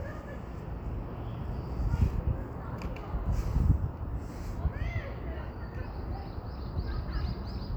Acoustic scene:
street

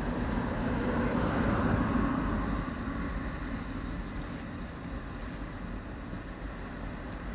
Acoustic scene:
street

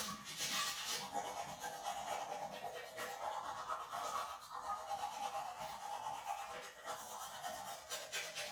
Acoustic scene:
restroom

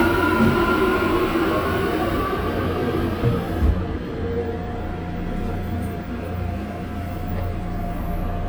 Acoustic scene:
subway train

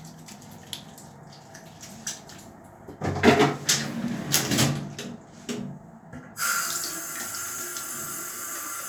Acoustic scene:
restroom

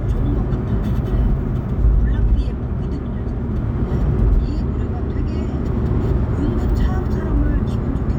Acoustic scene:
car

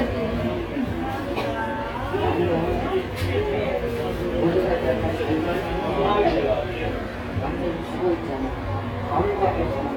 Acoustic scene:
cafe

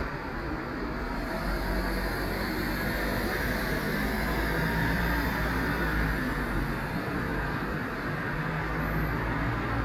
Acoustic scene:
street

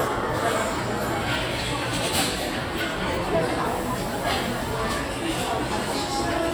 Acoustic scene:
crowded indoor space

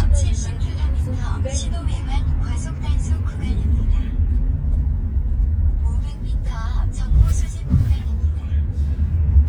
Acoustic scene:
car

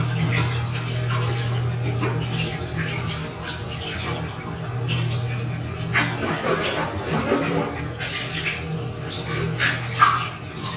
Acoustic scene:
restroom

